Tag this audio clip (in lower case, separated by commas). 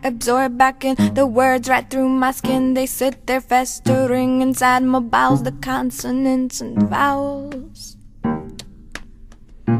music